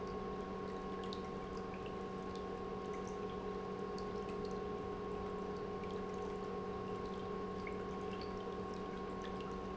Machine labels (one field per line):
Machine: pump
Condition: normal